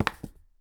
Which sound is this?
plastic object falling